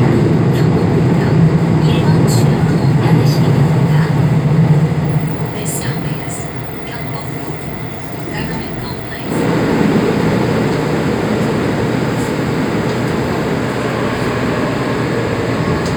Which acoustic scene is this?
subway train